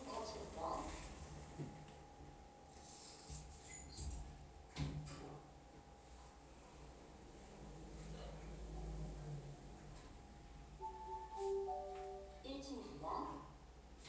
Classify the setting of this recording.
elevator